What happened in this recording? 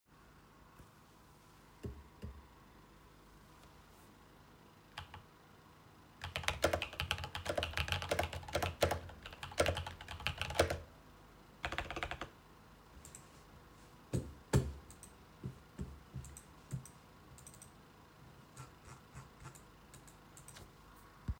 I turned on the desk light and started working at the desk. I typed on the keyboard while using the computer mouse. The mouse was clicked and scrolled.